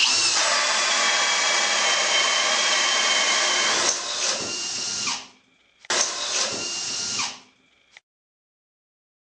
Power tool is drilling through a surface